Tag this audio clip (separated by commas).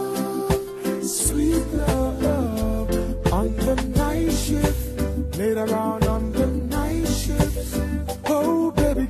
Music, Reggae